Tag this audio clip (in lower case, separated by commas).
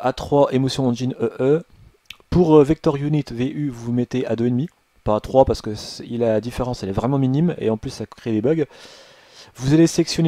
speech